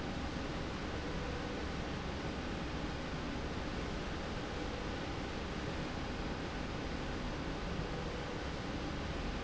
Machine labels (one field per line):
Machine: slide rail